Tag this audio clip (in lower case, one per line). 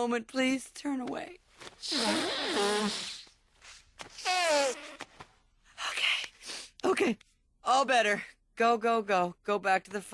speech